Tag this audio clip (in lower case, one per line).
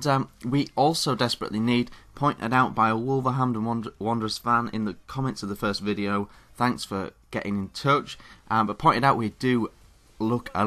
speech